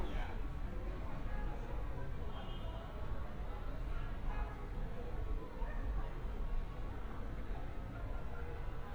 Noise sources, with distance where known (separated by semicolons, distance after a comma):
car horn, far; person or small group talking